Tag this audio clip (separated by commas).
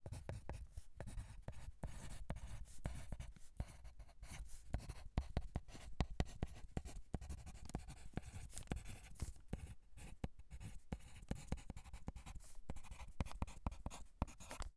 home sounds, Writing